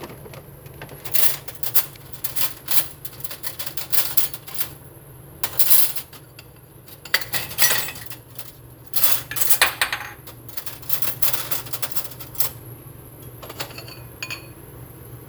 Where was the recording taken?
in a kitchen